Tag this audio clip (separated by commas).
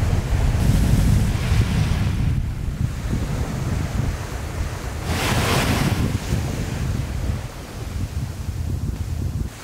volcano explosion